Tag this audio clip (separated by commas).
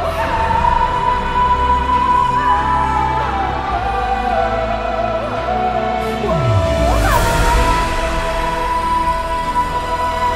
Music